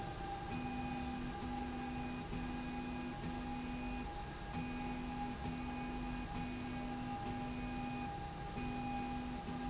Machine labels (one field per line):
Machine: slide rail